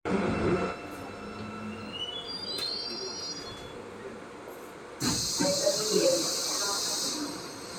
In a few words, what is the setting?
subway train